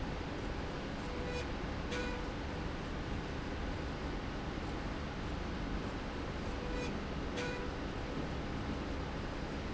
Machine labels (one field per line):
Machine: slide rail